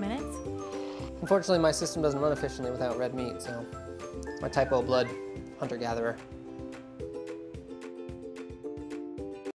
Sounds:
speech
music

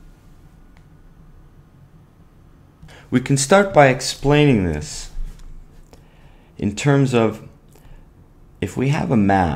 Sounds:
speech

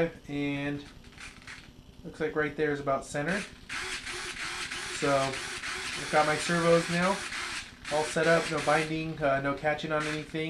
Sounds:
inside a small room
speech

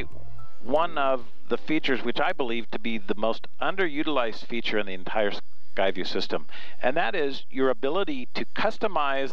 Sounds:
speech

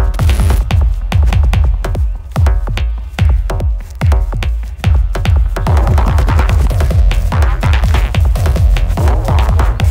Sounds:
music
outside, rural or natural

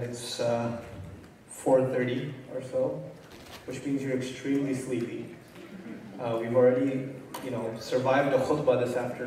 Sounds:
crackle
speech

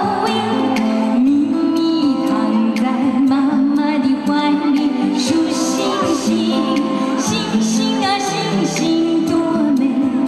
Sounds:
music

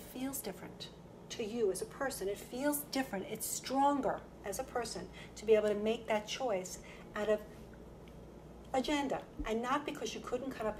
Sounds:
speech

